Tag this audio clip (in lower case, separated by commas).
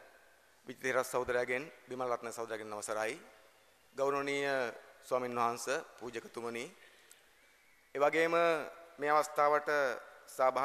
speech, narration, male speech